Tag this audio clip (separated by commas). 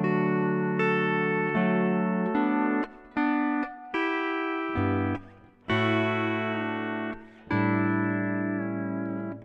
Plucked string instrument, Music